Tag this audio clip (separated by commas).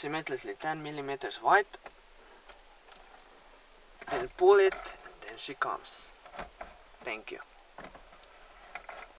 Speech